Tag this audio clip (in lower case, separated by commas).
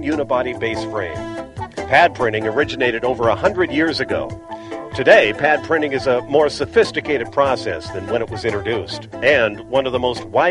music, speech